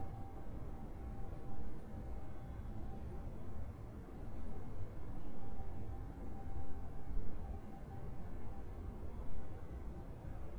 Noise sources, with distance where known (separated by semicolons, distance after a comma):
background noise